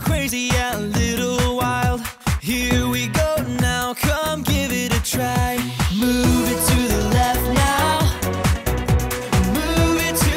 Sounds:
Pop music, Music

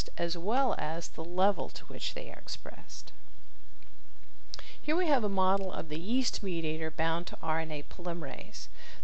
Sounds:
Narration

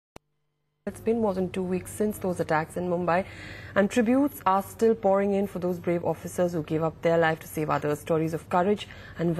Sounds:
Speech, inside a small room

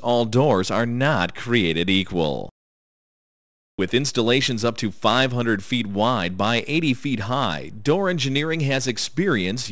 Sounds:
Speech

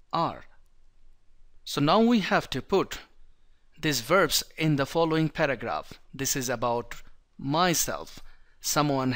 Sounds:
Speech

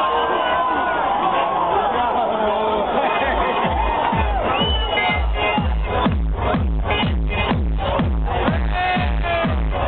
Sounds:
Music, Electronic music

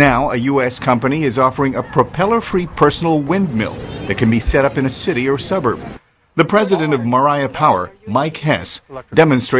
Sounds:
Wind, Speech

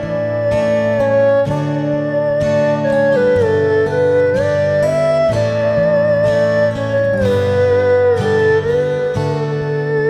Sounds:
playing erhu

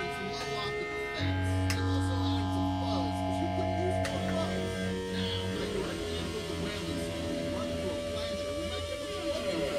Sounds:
inside a small room, Speech, Music

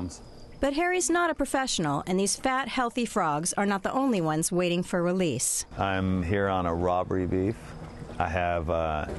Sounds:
Speech

